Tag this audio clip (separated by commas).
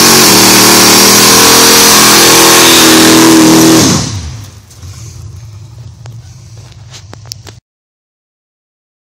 Vehicle